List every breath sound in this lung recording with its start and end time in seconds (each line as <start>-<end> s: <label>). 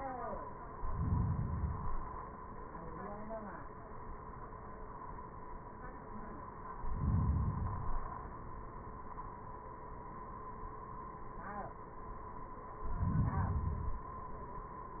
0.68-2.18 s: inhalation
6.71-8.21 s: inhalation
12.71-14.21 s: inhalation